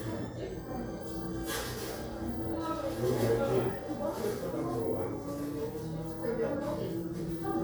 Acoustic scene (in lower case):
crowded indoor space